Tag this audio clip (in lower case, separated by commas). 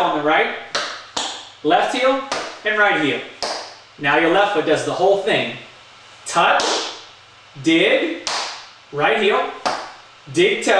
speech, tap